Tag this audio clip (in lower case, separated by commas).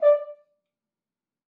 brass instrument, musical instrument, music